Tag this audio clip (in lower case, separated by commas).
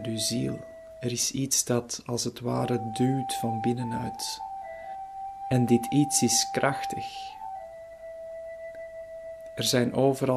speech, music